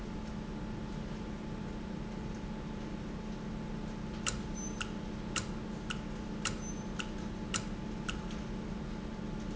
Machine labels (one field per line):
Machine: valve